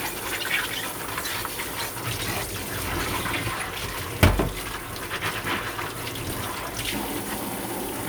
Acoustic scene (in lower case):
kitchen